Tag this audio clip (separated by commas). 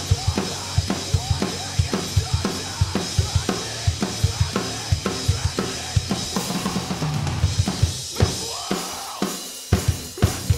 Bass drum, Drum, Music, Musical instrument, Drum kit